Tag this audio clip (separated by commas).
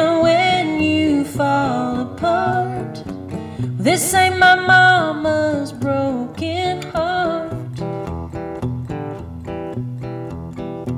Singing